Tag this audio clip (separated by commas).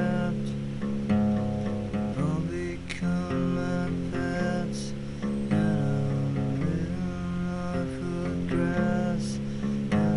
Acoustic guitar, Plucked string instrument, Music, Musical instrument, Guitar